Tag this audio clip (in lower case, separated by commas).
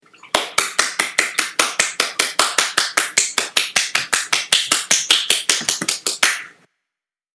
clapping, hands